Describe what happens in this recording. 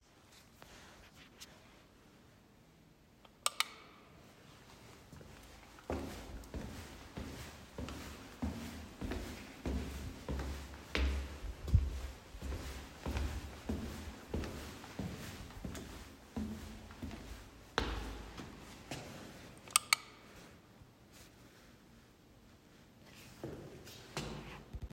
I switched the light on and walked around the hallway. Then I turned it off again.